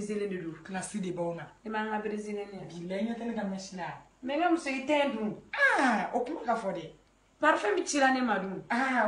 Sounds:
Speech

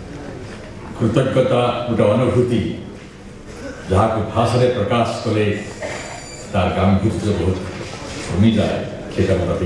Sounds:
monologue, Speech, Male speech

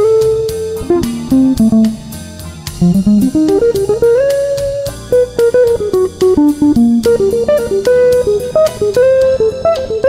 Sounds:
Plucked string instrument, Musical instrument, Music, Guitar

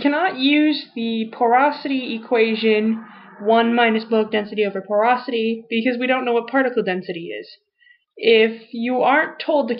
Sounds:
Speech

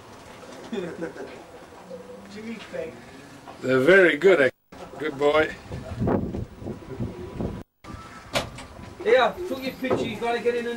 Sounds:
Speech

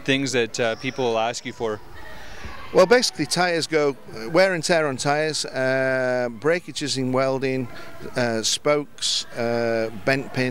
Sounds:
Speech

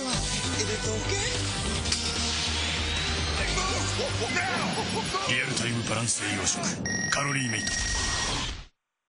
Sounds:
Music, Speech

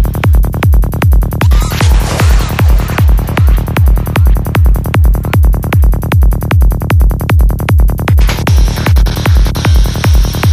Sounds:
Music, Vibration

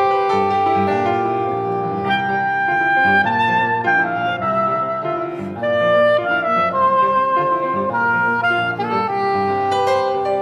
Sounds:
Music

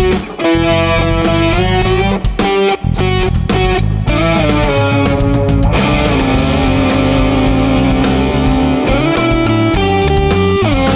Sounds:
Electric guitar, Musical instrument, Guitar, Plucked string instrument, Music

